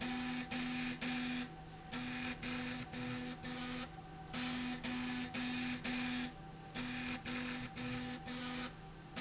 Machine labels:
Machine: slide rail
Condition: abnormal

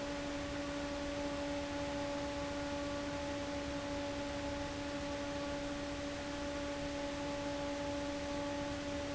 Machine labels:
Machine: fan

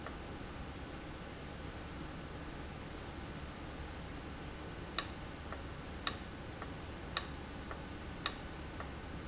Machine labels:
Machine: valve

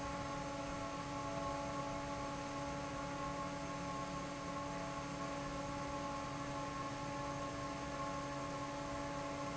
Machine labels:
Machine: fan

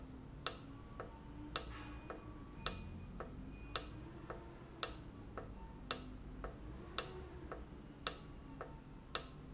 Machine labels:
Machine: valve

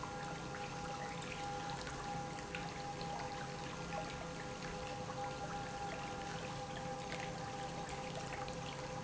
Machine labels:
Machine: pump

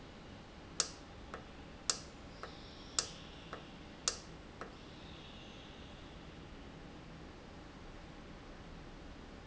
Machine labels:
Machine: valve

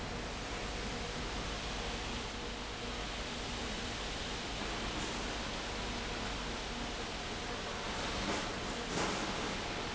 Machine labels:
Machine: fan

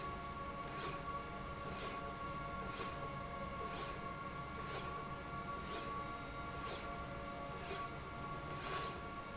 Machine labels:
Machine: slide rail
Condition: normal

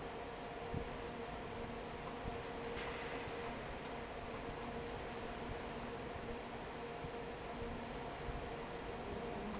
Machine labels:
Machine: fan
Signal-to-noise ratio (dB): 6 dB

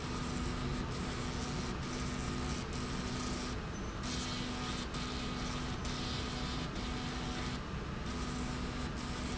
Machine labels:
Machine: slide rail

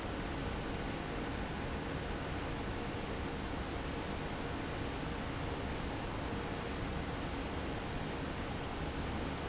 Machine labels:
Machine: fan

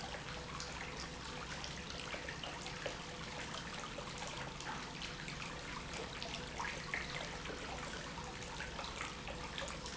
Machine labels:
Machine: pump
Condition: normal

